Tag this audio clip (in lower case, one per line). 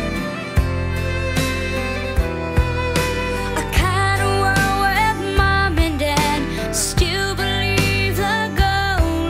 child singing